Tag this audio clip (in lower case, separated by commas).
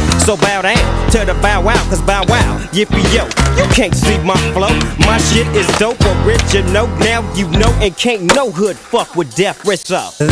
skateboard, music